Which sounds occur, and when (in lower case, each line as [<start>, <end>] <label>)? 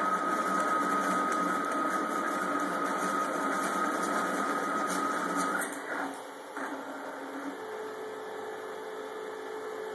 [0.00, 9.94] mechanisms